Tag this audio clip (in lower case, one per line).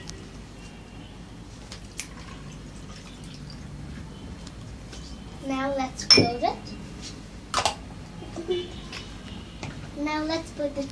kid speaking